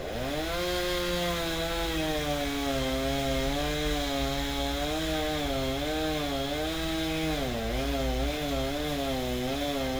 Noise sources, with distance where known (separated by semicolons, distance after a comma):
chainsaw, near